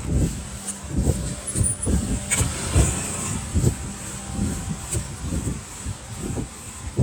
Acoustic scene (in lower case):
residential area